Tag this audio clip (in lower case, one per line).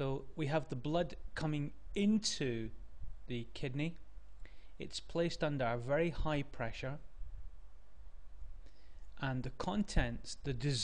speech